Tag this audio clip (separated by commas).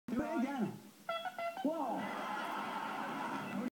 Speech